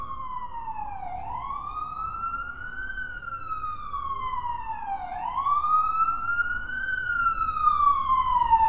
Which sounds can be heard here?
siren